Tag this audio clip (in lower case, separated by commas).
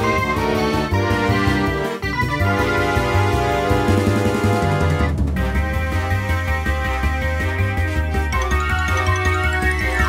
background music, music